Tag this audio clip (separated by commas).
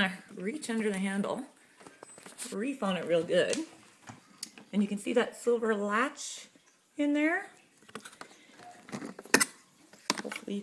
Speech